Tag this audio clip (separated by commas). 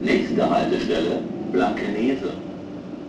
Rail transport, Train, Vehicle